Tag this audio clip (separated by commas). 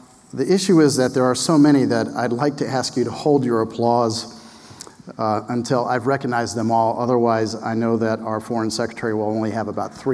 Speech, Male speech